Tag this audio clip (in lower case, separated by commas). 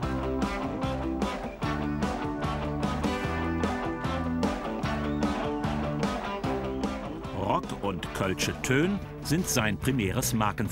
music, speech